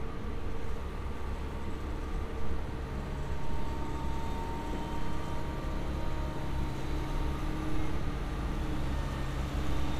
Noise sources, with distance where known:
large-sounding engine, near

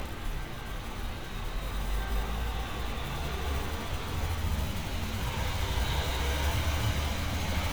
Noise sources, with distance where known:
engine of unclear size, near

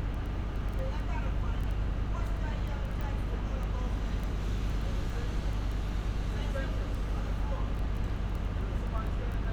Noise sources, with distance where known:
unidentified human voice, far

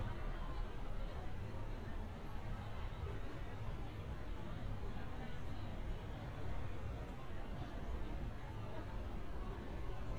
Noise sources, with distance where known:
person or small group talking

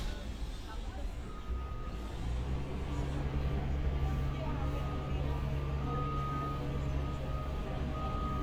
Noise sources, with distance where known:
large-sounding engine, far; reverse beeper, far

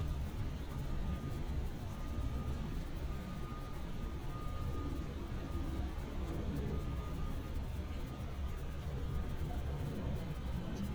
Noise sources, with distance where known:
reverse beeper, far

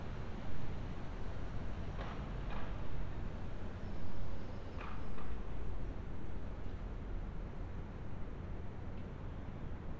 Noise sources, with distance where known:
non-machinery impact, far

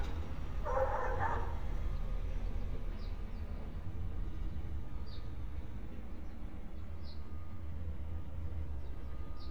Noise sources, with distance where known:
dog barking or whining, near

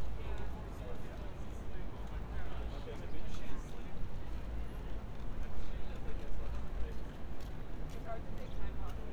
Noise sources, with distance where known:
person or small group talking, near

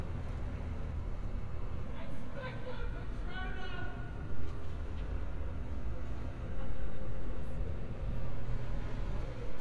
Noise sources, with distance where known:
person or small group shouting, far

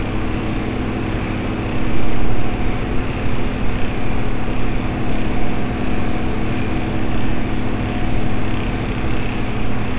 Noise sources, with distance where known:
unidentified impact machinery

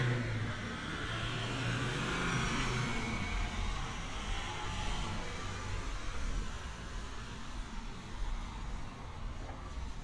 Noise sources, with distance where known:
engine of unclear size, near

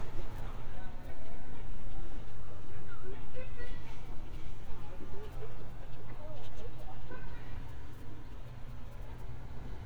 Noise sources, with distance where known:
person or small group shouting, far

